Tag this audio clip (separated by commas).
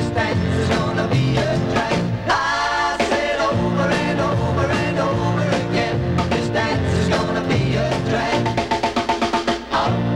Music